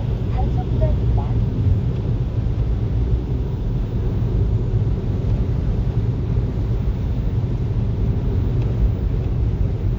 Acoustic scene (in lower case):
car